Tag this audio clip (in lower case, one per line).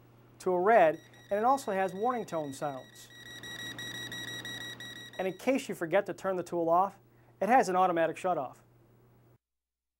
speech